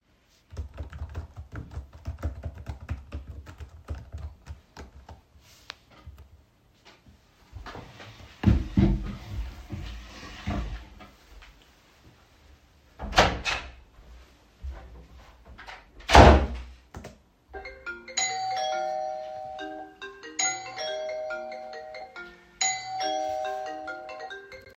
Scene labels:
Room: bedroom; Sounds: keyboard typing, footsteps, door, phone ringing, bell ringing

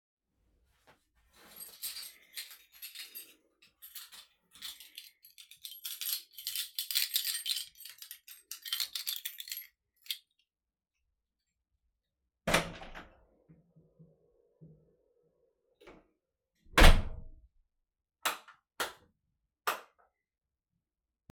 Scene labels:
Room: hallway; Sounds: keys, door (more than once), light switch

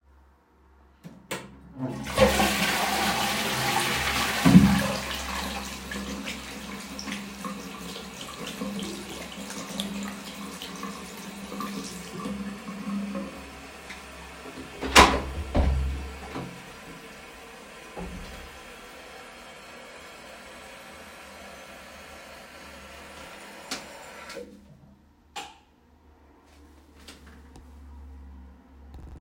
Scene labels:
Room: lavatory, hallway; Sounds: toilet flushing, running water, door, light switch

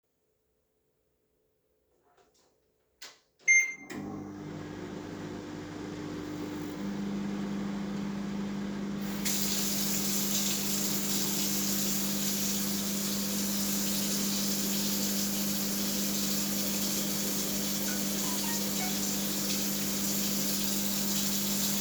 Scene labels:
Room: kitchen; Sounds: microwave, running water, phone ringing

